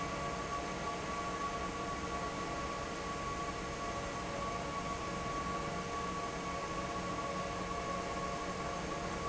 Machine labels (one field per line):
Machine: fan